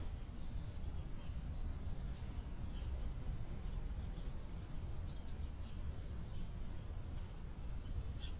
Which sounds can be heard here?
background noise